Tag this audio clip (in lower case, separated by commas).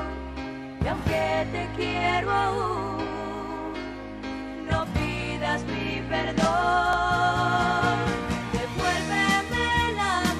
music